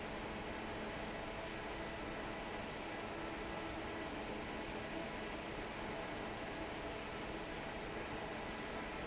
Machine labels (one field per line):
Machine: fan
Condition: normal